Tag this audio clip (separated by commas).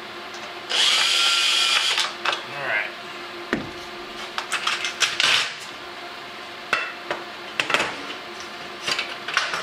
Speech, Tools, inside a small room